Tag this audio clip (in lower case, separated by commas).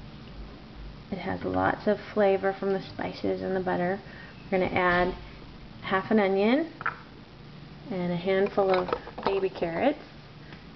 speech